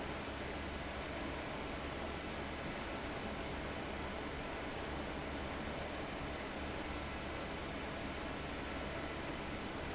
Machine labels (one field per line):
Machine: fan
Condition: abnormal